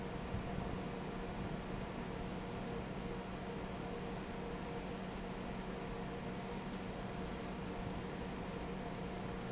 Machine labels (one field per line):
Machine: fan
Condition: normal